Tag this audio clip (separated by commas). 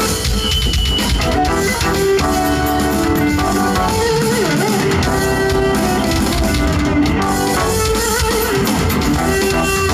Music